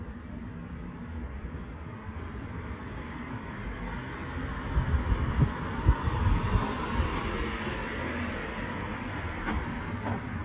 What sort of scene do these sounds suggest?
street